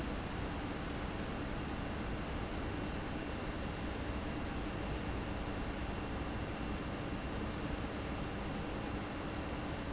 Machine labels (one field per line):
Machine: fan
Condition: abnormal